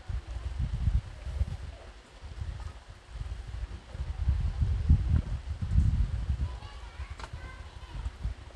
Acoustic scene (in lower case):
park